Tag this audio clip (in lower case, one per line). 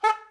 musical instrument
music
wind instrument